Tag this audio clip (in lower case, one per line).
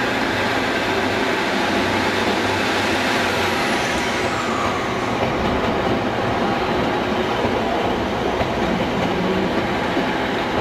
subway
train
clickety-clack
railroad car
rail transport